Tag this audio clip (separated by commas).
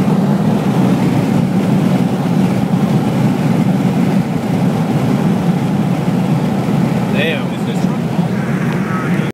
Speech